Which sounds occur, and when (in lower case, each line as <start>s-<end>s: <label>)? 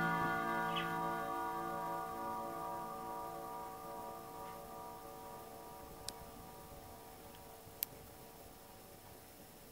0.0s-9.7s: alarm clock
0.0s-9.7s: mechanisms
0.7s-1.0s: bird song
4.4s-4.6s: surface contact
6.0s-6.3s: tick
7.8s-8.0s: tick